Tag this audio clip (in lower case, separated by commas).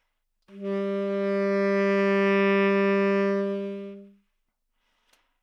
musical instrument, woodwind instrument, music